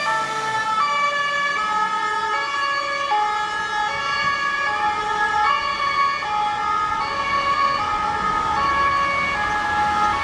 An ambulance siren slowly moving away